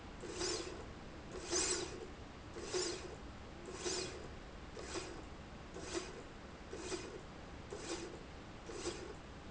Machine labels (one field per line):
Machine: slide rail